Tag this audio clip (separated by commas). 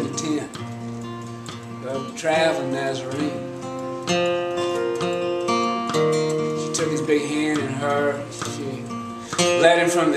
Music, Speech